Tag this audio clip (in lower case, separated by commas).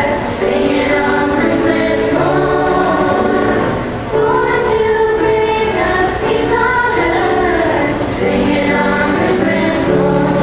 choir, female singing, music